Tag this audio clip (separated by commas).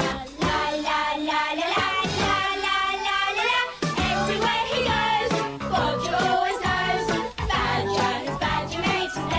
Jingle (music)